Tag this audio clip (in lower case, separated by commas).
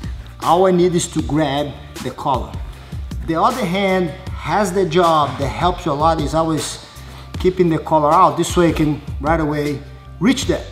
music, speech